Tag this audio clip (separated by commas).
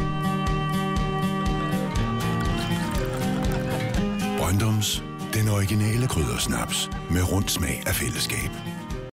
Music, Speech